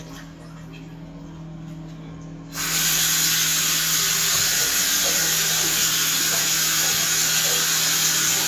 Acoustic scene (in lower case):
restroom